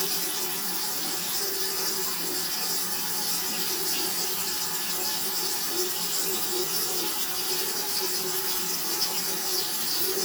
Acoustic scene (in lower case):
restroom